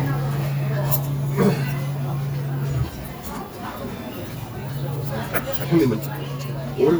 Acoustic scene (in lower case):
restaurant